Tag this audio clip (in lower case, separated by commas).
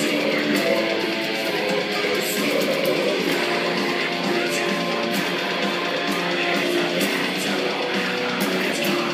plucked string instrument, guitar, musical instrument, music